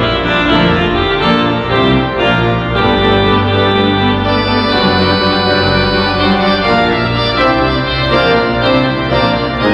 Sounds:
Organ, Music

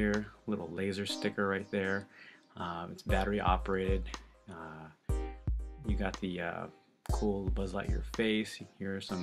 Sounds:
Music, Speech

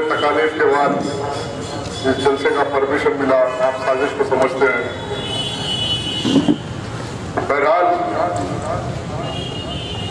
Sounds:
Speech synthesizer, man speaking, Speech, monologue

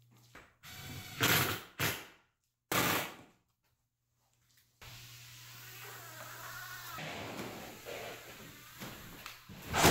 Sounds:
sliding door

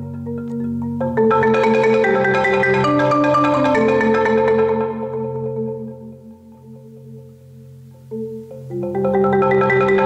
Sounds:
xylophone, Percussion, Mallet percussion, Glockenspiel

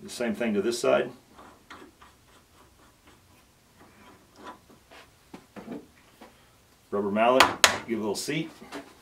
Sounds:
Speech

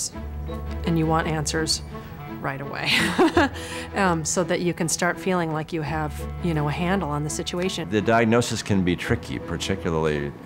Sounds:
Music, Speech

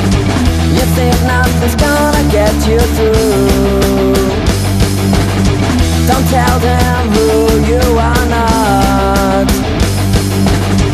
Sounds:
Music, Pop music, Funk

